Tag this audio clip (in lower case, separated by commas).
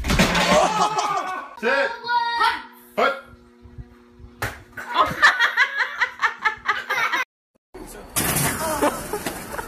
door slamming